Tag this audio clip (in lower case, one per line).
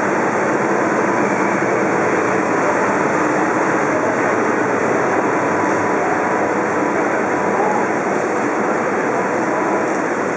vehicle